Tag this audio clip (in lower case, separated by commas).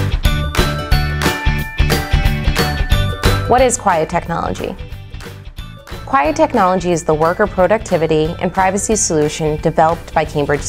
speech, music